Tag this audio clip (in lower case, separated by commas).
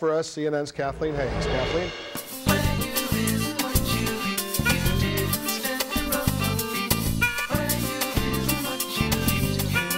music, speech, tender music